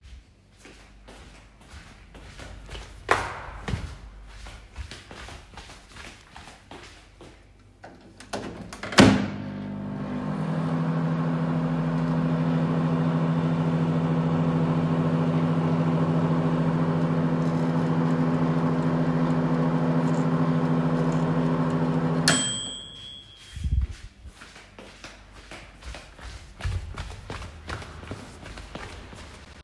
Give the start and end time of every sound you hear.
0.8s-8.7s: footsteps
8.7s-23.1s: microwave
23.5s-29.6s: footsteps

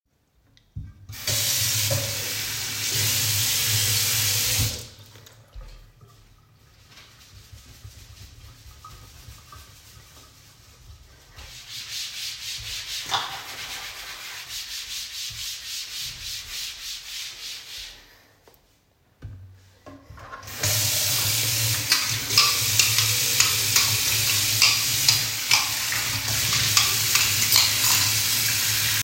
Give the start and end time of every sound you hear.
1.1s-4.9s: running water
20.6s-29.0s: running water
21.9s-28.7s: cutlery and dishes

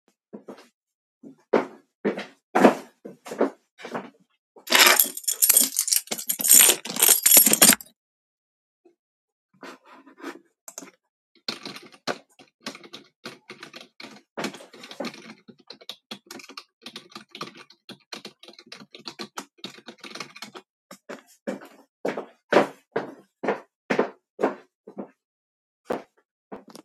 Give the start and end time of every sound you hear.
1.1s-4.5s: footsteps
4.6s-8.0s: keys
10.9s-20.9s: keyboard typing
21.3s-21.3s: footsteps
21.4s-25.2s: footsteps
25.7s-26.8s: footsteps

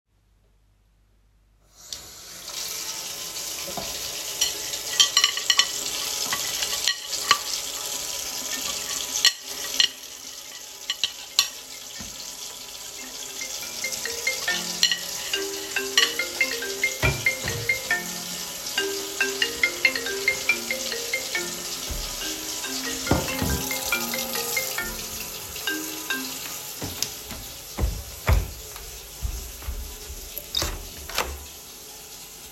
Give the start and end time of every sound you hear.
1.9s-32.5s: running water
4.5s-11.6s: cutlery and dishes
11.5s-26.9s: phone ringing
14.8s-18.1s: cutlery and dishes

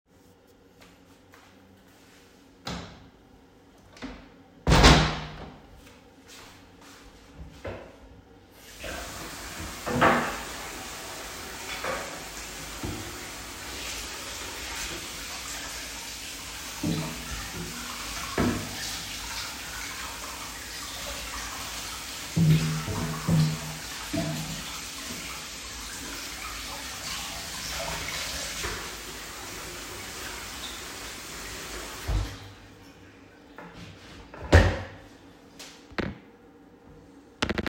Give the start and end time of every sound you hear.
0.7s-2.6s: footsteps
4.5s-5.6s: door
6.2s-7.4s: footsteps

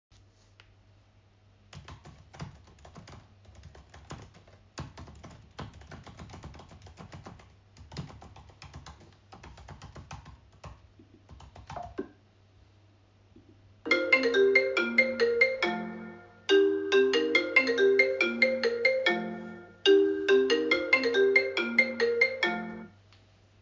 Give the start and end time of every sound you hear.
1.6s-12.2s: keyboard typing
13.7s-23.0s: phone ringing

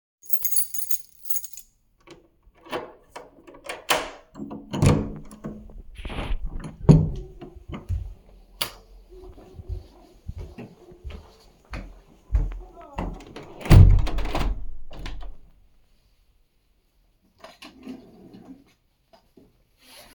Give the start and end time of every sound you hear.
0.2s-1.8s: keys
2.0s-8.2s: door
7.6s-8.3s: footsteps
8.6s-8.8s: light switch
9.5s-13.5s: footsteps
13.1s-15.5s: window

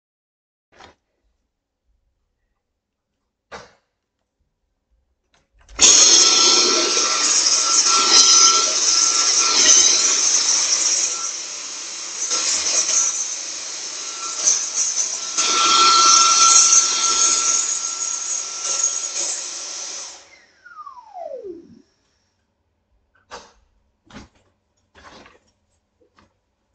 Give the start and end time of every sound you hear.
0.7s-1.1s: light switch
3.4s-3.8s: light switch
5.7s-21.7s: vacuum cleaner

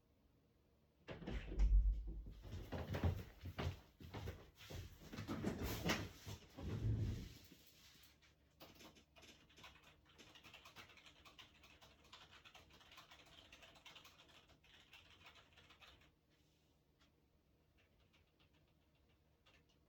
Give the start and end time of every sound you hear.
1.1s-2.1s: door
2.7s-5.1s: footsteps
8.6s-19.8s: keyboard typing

